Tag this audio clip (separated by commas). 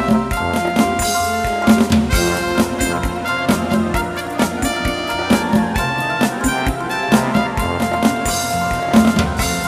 Music, Theme music